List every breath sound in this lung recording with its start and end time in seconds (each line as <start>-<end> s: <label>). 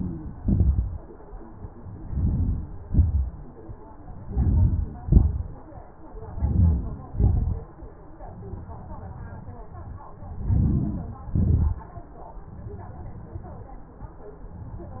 1.50-7.10 s: inhalation